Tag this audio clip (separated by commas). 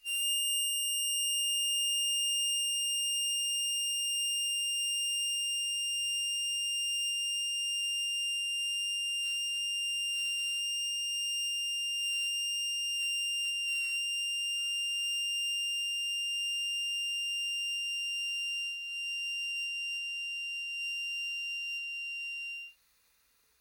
Musical instrument, Harmonica, Music